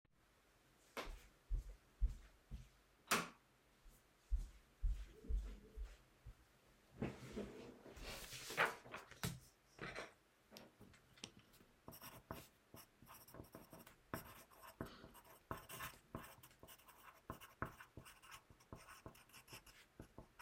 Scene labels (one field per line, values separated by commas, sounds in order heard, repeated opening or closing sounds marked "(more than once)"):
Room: bedroom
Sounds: footsteps, light switch